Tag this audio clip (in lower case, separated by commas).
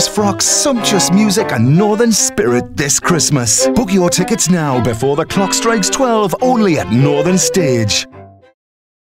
speech, music